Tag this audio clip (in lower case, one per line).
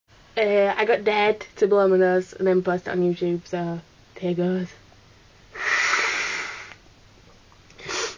speech